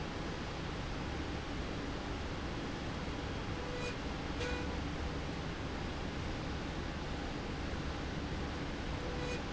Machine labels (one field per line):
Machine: slide rail